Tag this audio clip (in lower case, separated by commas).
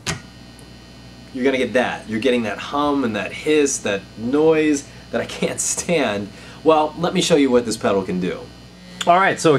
speech